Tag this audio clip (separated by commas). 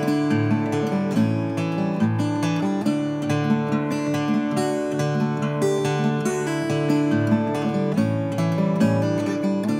Music